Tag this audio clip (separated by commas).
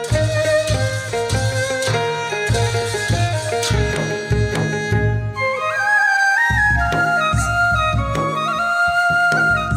Music, Traditional music